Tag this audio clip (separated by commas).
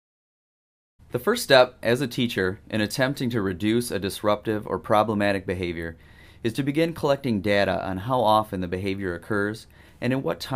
Speech